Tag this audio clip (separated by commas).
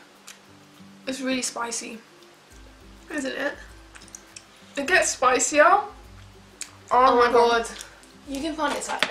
Speech, inside a small room, Music